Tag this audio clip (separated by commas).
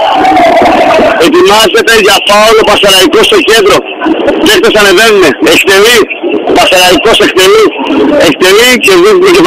Speech, Radio